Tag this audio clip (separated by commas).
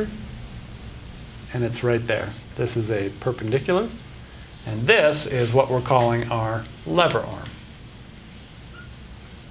Speech, inside a small room